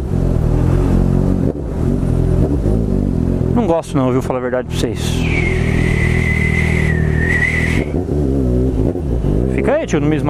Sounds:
car passing by

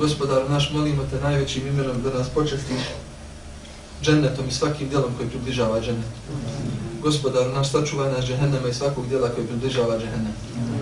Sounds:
Speech

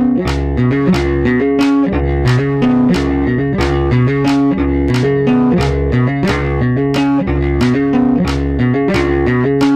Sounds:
tapping guitar

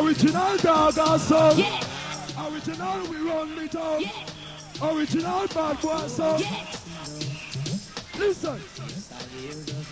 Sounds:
Music

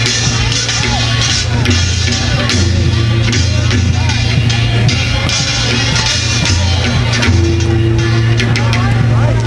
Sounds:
Wood block, Percussion, Speech, Music

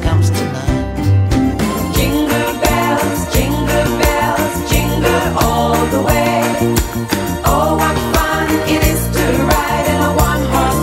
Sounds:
Music, Wedding music

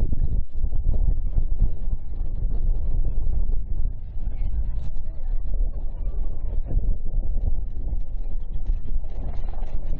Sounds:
Speech

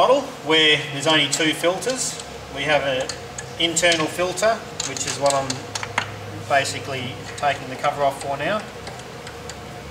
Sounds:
Speech

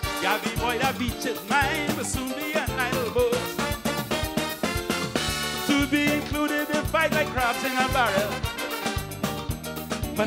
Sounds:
Happy music, Music

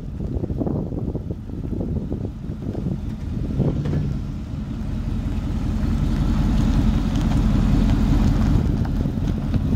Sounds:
Vehicle, Car

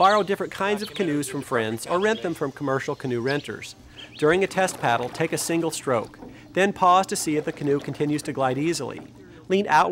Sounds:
kayak, Water vehicle

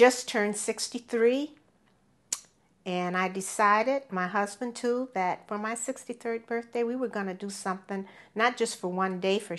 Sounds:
Speech

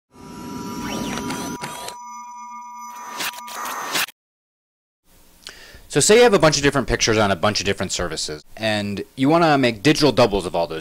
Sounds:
Speech

